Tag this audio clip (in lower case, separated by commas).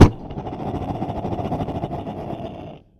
fire